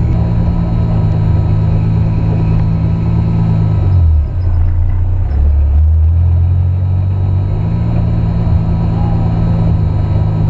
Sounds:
Vehicle, Car

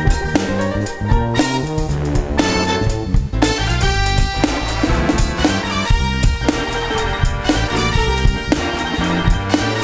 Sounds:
Music

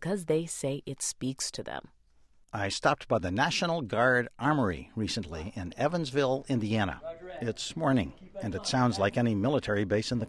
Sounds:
Speech

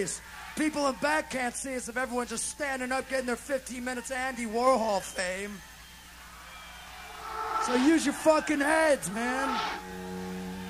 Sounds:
Speech

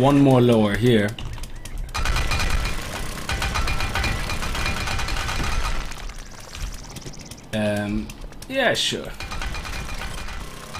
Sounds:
Speech, outside, rural or natural

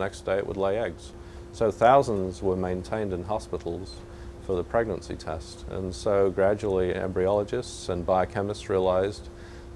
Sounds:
Speech

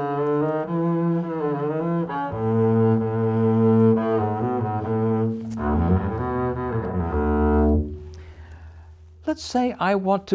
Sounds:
playing double bass

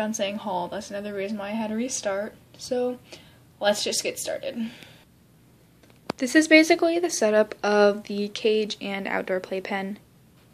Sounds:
Speech

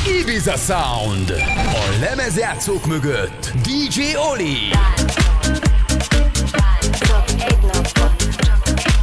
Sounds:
Music, Beep, Speech

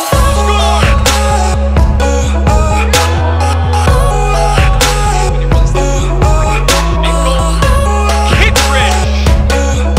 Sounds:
Speech, Music

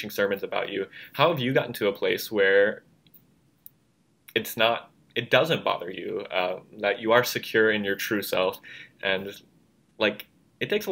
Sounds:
Speech

